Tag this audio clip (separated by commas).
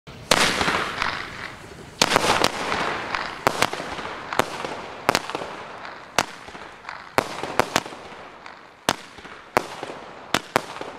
fireworks banging, Fireworks